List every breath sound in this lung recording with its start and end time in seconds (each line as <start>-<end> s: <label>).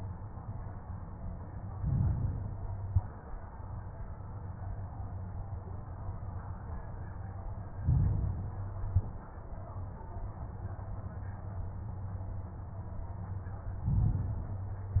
1.75-2.71 s: inhalation
2.71-3.25 s: exhalation
7.81-8.84 s: inhalation
8.84-9.35 s: exhalation
13.87-15.00 s: inhalation